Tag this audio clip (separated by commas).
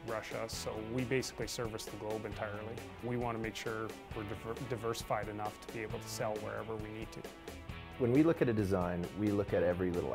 Music, Speech